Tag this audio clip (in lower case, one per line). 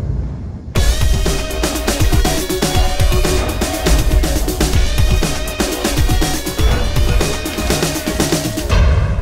music